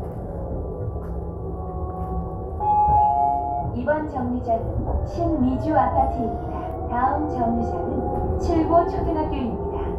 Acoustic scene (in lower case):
bus